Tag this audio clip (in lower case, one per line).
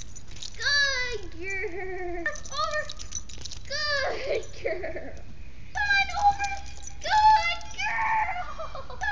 speech